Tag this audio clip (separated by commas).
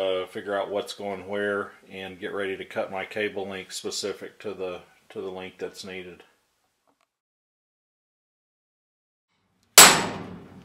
Speech, inside a small room